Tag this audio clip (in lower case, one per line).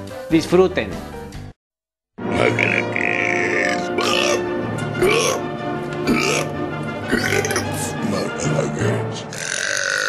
people burping